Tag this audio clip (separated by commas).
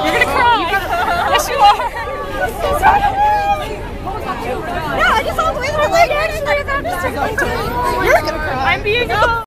Speech